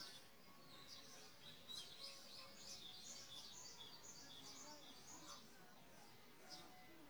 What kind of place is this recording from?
park